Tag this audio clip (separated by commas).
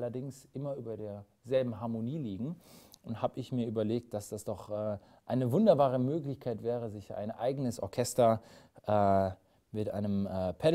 Speech